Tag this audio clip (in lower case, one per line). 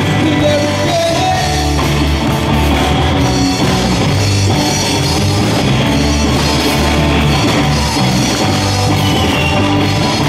music
gospel music